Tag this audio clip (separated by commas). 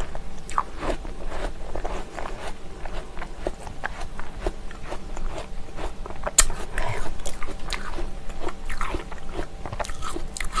people eating apple